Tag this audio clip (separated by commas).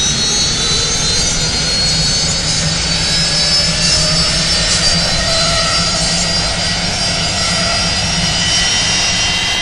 outside, urban or man-made